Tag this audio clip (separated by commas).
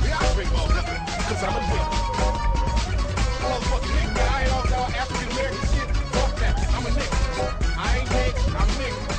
Speech, Music